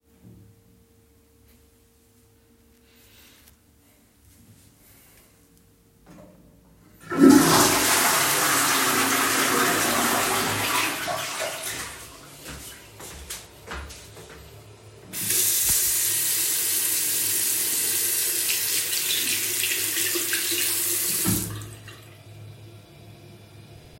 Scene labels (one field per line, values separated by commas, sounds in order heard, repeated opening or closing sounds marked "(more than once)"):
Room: lavatory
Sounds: toilet flushing, footsteps, running water